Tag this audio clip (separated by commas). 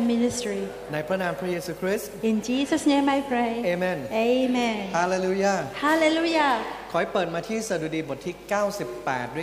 Speech